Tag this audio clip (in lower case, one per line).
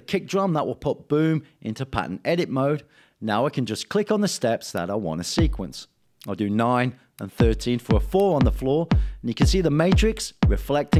drum machine
speech
musical instrument
music